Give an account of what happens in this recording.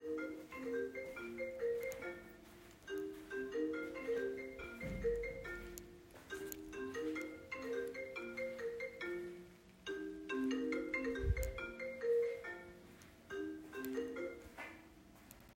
I carried the phone while walking around the room and triggered a phone call so the ringtone could be recorded.